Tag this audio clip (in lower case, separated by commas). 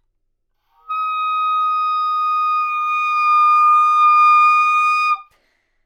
wind instrument, music, musical instrument